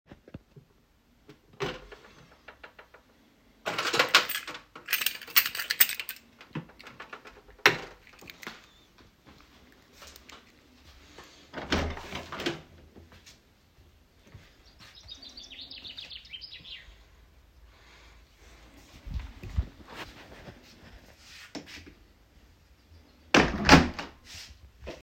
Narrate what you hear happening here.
I opened the key box and searched for the key. Afterwards, I opened the front door and heard some birdsongs. Then, I closed the door again.